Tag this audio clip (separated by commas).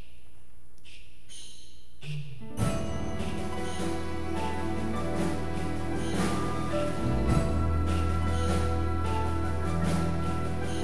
Music